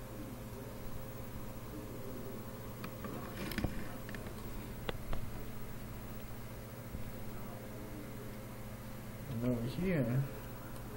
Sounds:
speech
inside a small room

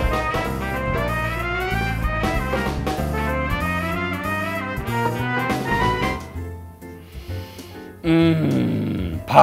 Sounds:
speech
music

